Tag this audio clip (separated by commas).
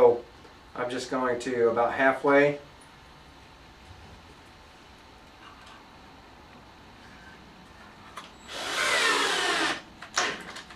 inside a small room, Speech